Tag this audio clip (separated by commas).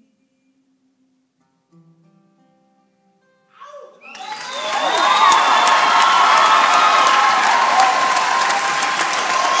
Music, Applause